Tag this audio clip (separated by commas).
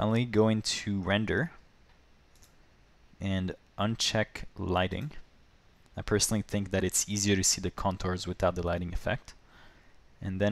Speech